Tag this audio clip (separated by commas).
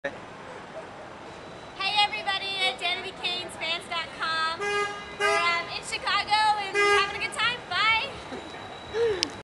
Speech